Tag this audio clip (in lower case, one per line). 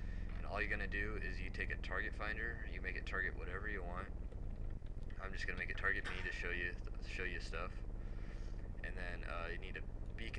speech